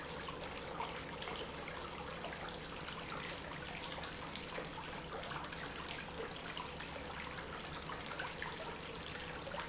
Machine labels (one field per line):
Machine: pump